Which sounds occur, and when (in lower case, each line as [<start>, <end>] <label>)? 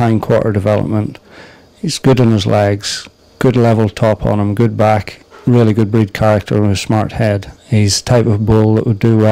[0.00, 1.13] male speech
[0.00, 9.31] background noise
[0.00, 9.31] insect
[1.11, 1.18] tick
[1.24, 1.66] breathing
[1.73, 3.02] male speech
[3.02, 3.10] tick
[3.42, 5.17] male speech
[5.04, 5.12] tick
[5.26, 5.45] breathing
[5.43, 7.53] male speech
[7.39, 7.46] tick
[7.64, 9.31] male speech